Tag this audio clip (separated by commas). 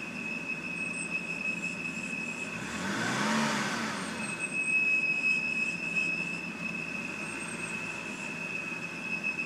Speech, Vehicle